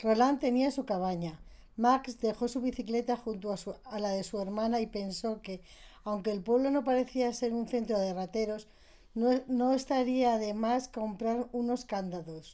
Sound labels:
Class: speech